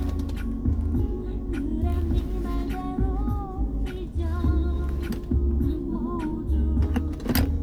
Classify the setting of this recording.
car